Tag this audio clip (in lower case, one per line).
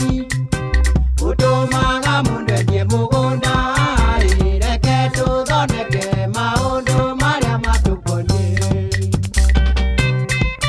music